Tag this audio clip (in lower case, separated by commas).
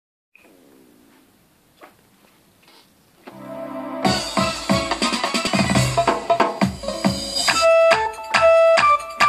inside a small room, musical instrument, keyboard (musical), music